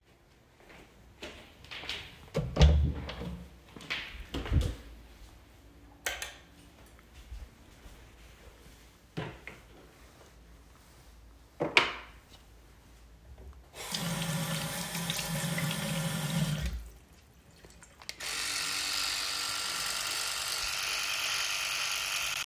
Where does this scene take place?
bathroom